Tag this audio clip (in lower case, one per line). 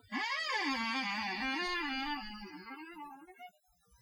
squeak